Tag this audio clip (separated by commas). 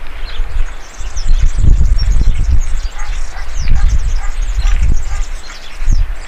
Bird, Dog, Wild animals, pets, Animal